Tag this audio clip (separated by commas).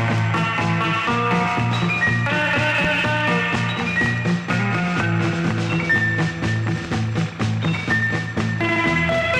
Music, Happy music